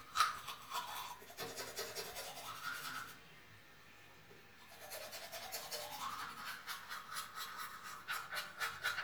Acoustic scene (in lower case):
restroom